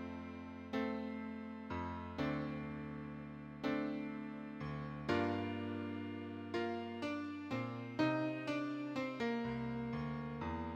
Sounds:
Traditional music, Tender music, Music

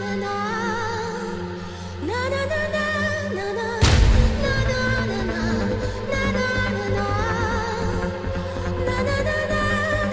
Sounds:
Music, Sampler

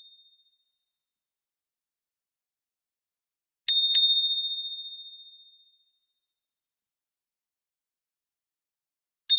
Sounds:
Ding

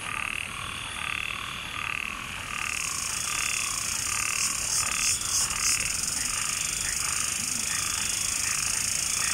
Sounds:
Insect, Animal

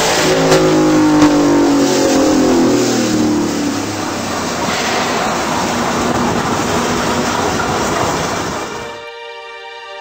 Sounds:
Engine, Car, vroom, Vehicle

